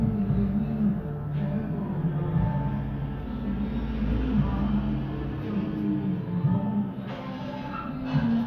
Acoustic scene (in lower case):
cafe